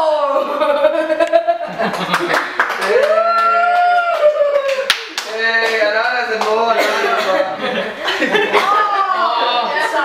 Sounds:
clapping, speech

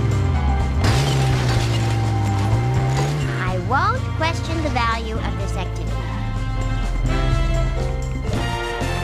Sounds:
music, speech

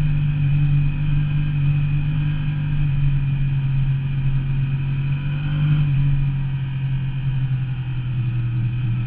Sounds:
vehicle, accelerating

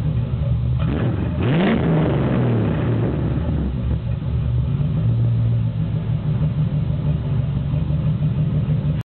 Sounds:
accelerating, vehicle

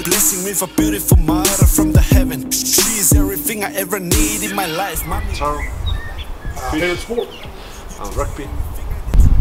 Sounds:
music, speech, outside, rural or natural

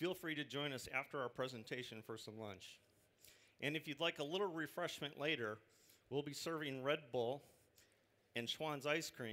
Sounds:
speech

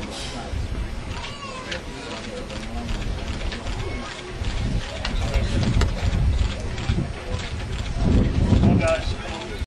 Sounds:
vehicle, speech

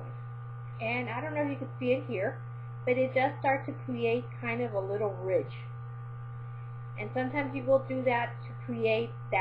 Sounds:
speech

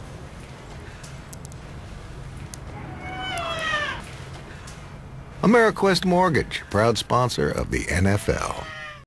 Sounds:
pets, meow, animal, cat, speech, caterwaul

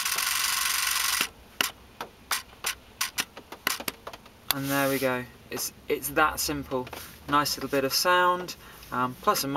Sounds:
tick-tock, speech

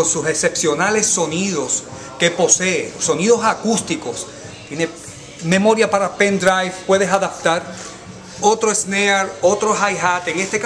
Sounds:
music, speech

